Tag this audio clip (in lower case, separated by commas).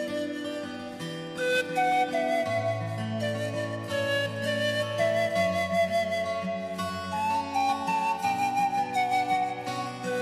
music